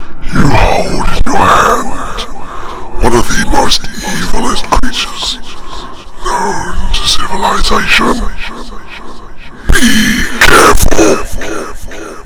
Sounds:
Human voice

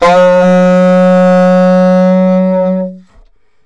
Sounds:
Musical instrument, Music, Wind instrument

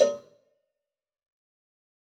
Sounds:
Cowbell, Bell

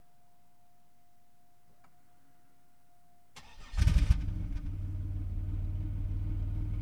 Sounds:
Engine, Idling, Motor vehicle (road), Engine starting, Vehicle, Car

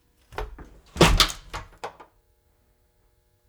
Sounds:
Slam, Domestic sounds, Door

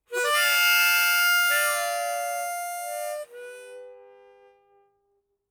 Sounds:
Musical instrument, Music, Harmonica

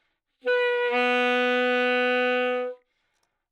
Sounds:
woodwind instrument, Music, Musical instrument

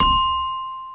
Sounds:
Musical instrument, Mallet percussion, Marimba, Music, Percussion

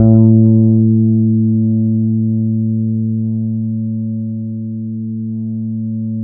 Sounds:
Bass guitar, Music, Plucked string instrument, Musical instrument, Guitar

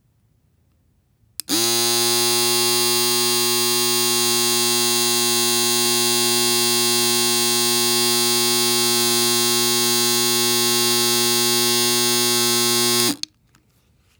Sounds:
home sounds

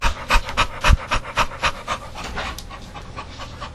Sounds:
Animal, pets, Dog

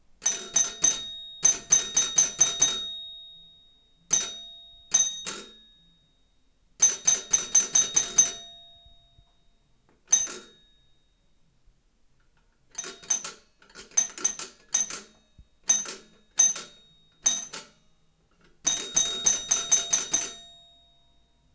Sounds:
Door, Doorbell, Domestic sounds, Alarm

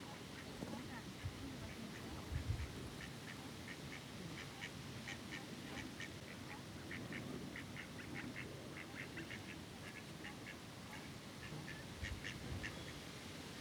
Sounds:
Fowl, Animal, livestock

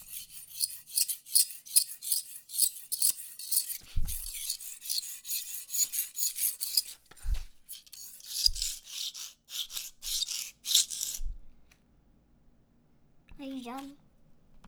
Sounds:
Scissors, Domestic sounds

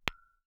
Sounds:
Tap, Glass

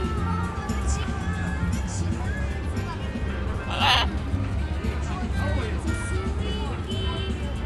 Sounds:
Wild animals, Animal, Human voice, Bird

